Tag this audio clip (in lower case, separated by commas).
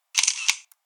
mechanisms, camera